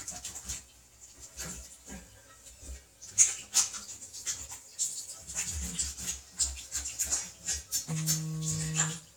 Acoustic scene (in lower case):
restroom